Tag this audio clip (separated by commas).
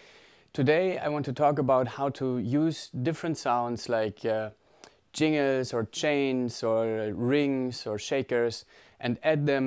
Speech